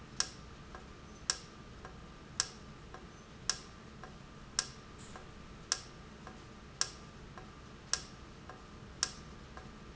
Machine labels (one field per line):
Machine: valve